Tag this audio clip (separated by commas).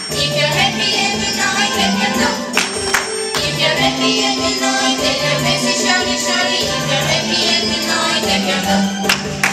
Music